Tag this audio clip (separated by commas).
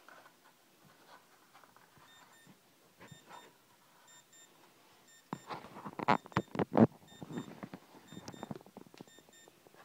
Alarm